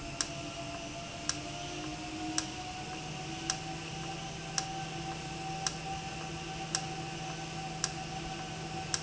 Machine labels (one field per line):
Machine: valve